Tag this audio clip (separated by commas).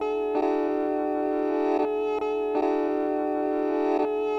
Guitar, Music, Plucked string instrument, Musical instrument